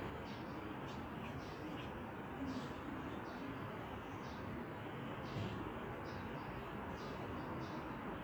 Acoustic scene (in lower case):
residential area